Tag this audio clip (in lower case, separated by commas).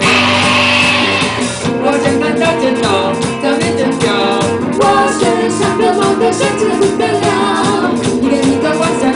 music